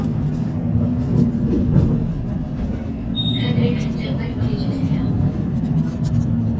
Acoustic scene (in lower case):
bus